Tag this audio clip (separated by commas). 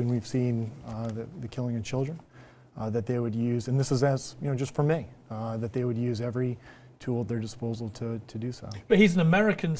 Speech